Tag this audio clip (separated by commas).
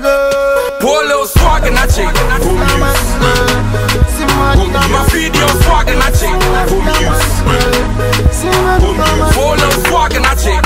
Music, Afrobeat